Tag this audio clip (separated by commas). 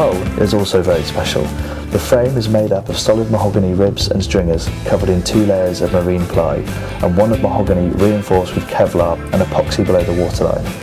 Music, Speech